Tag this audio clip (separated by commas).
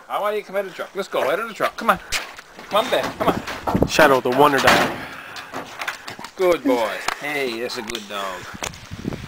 Speech